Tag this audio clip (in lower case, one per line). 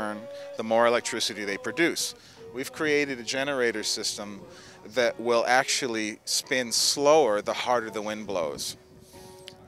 music
speech